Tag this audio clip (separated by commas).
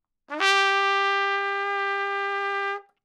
Brass instrument, Music, Trumpet, Musical instrument